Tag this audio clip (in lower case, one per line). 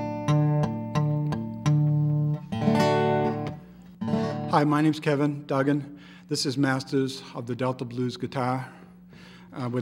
blues
plucked string instrument
strum
guitar
music
musical instrument
speech
electric guitar